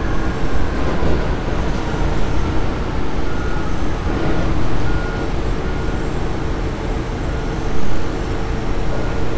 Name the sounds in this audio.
unidentified impact machinery, reverse beeper